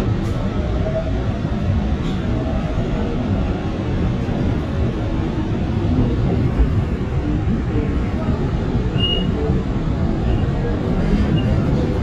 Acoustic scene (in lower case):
subway train